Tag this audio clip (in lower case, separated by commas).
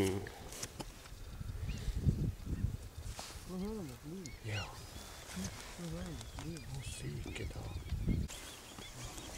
animal, speech, outside, rural or natural